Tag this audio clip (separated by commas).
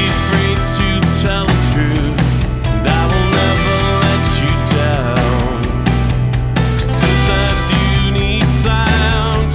Music